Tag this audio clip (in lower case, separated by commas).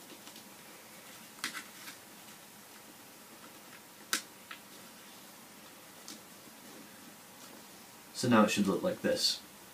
speech